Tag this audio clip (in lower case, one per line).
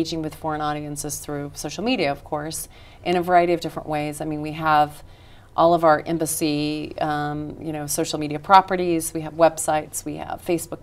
speech
inside a small room